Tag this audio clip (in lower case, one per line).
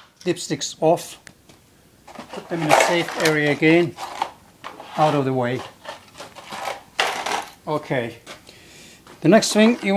speech